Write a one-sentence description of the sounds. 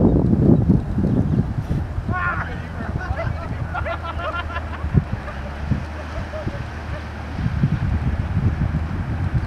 A person yells then several people begin laughing